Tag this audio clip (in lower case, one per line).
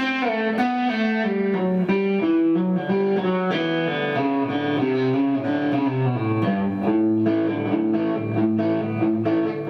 music
country